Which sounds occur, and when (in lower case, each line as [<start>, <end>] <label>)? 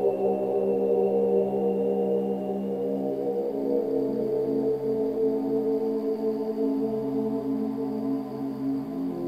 [0.00, 9.25] background noise
[0.00, 9.25] mantra